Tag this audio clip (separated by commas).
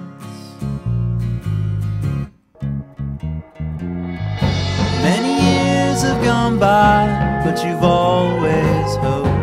Music, Tender music